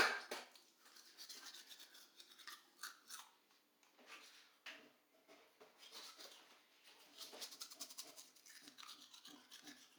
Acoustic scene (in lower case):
restroom